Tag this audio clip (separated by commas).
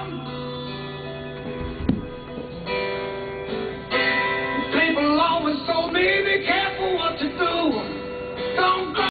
Musical instrument, Plucked string instrument, Guitar, Music